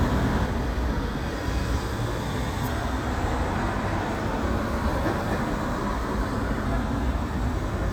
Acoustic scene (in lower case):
street